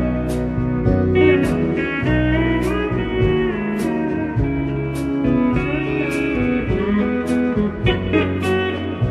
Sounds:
acoustic guitar, music, electric guitar, musical instrument, plucked string instrument, guitar, strum

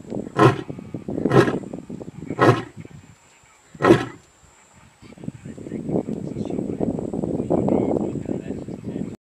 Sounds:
roar, speech

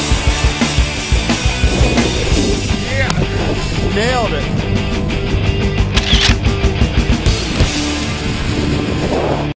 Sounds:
speech, music

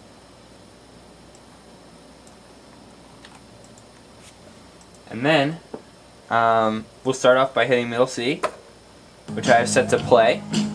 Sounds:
speech, music

